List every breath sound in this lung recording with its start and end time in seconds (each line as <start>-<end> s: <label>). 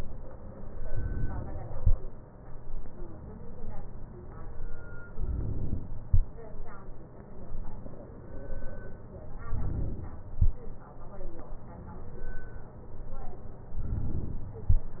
0.81-1.85 s: inhalation
5.13-6.08 s: inhalation
9.45-10.38 s: inhalation
13.78-14.66 s: inhalation